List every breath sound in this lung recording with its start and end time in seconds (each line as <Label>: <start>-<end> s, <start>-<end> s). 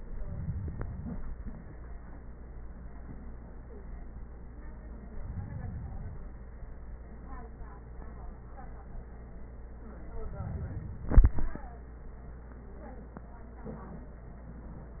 No breath sounds were labelled in this clip.